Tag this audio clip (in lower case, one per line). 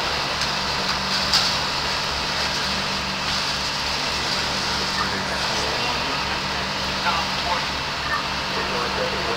speech